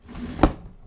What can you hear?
wooden drawer closing